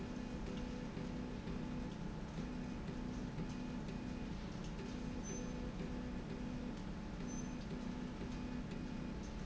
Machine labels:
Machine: slide rail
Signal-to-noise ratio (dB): 0 dB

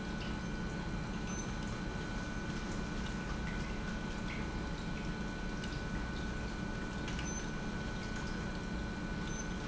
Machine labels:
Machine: pump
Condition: normal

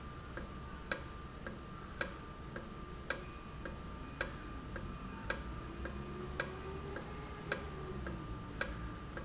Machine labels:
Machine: valve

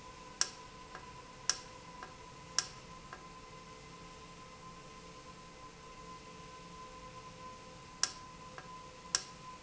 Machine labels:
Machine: valve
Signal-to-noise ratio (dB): 6 dB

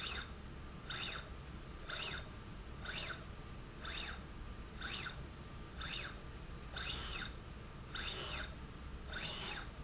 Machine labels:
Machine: slide rail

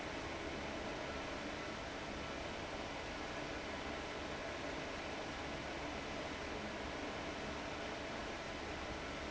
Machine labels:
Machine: fan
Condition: abnormal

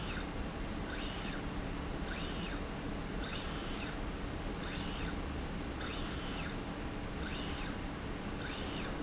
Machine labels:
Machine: slide rail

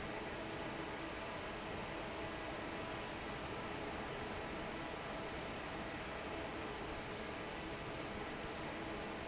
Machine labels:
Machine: fan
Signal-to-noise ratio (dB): 6 dB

